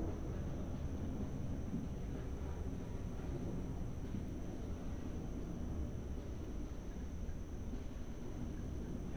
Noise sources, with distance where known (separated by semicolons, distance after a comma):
background noise